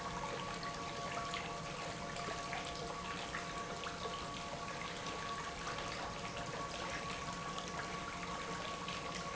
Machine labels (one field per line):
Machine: pump